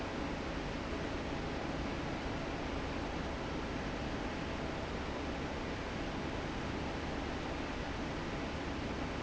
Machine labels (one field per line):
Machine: fan